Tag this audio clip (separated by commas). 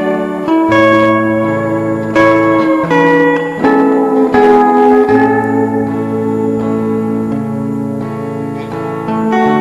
Music, Guitar